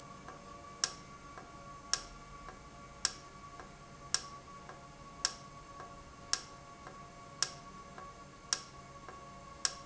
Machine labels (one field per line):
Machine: valve